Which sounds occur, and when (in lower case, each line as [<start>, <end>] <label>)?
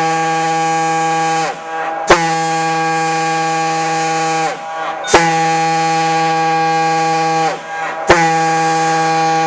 [0.01, 9.45] background noise
[0.03, 1.47] siren
[2.04, 4.51] siren
[5.05, 7.50] siren
[8.03, 9.45] siren